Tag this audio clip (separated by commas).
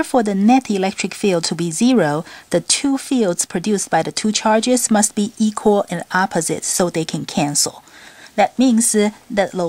Speech